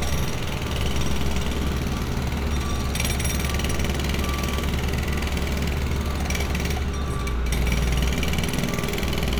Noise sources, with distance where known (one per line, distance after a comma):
jackhammer, near
reverse beeper, far